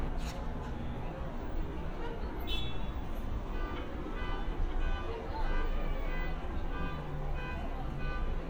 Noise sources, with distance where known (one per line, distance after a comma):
car horn, near
car alarm, near